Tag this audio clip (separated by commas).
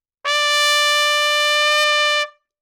Musical instrument, Brass instrument, Trumpet, Music